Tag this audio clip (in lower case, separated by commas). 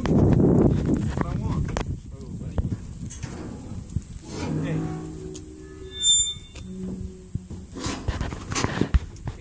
speech